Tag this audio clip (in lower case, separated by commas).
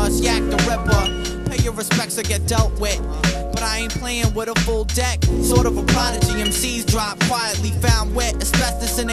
music